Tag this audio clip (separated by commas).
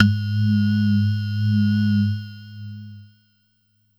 Musical instrument, Music, Keyboard (musical)